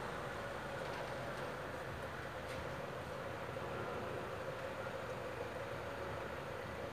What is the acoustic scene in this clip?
residential area